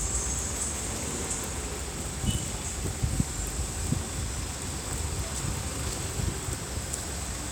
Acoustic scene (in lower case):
street